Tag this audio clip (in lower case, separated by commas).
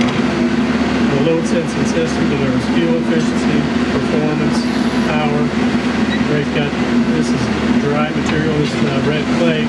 speech